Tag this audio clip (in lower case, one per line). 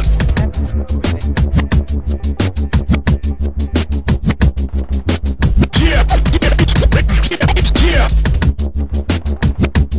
music
drum and bass